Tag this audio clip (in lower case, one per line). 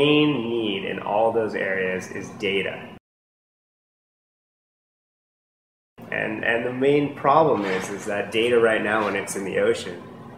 speech